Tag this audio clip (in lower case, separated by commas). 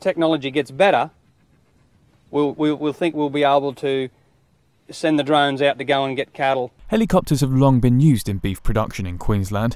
speech